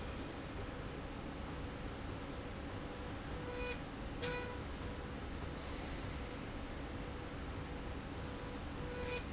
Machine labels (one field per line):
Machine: slide rail